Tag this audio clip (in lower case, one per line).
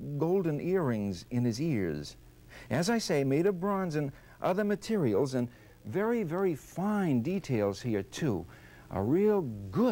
speech